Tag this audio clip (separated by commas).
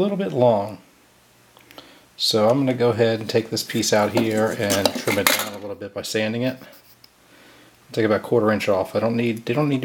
Speech